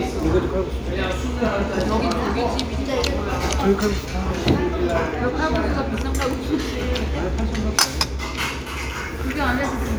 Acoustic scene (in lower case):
restaurant